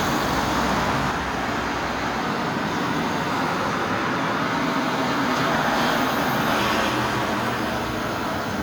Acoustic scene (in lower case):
street